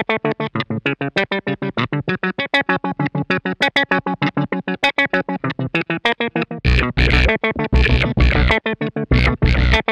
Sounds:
Music, Electronica

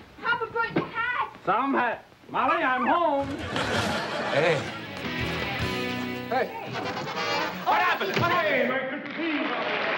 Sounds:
Applause

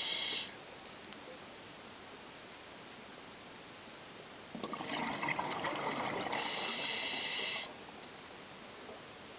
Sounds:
Water

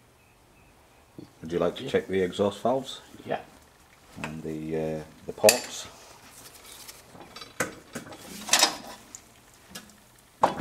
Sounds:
inside a small room, Speech

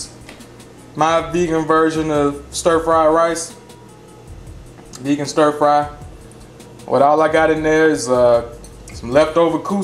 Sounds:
Music, Speech

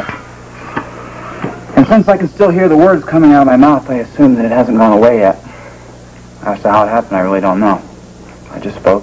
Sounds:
monologue, Speech, man speaking

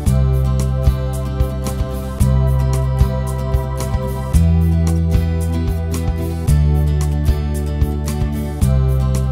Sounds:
Music

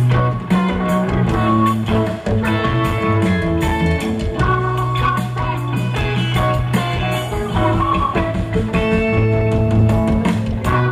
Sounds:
Music

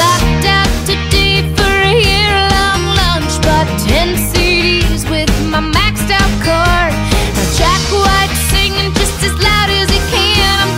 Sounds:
Disco, Music

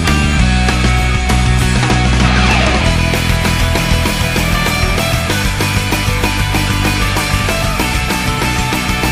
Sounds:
Music

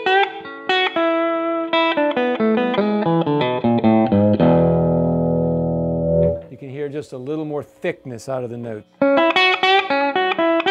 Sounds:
Guitar, Effects unit, Electric guitar, Plucked string instrument, Music, Speech, Musical instrument

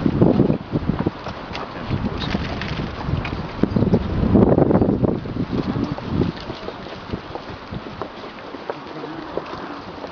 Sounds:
Speech

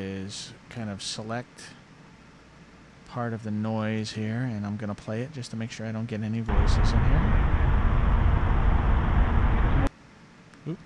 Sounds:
Speech

